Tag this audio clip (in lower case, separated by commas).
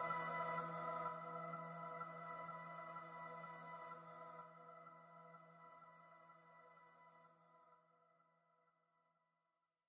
music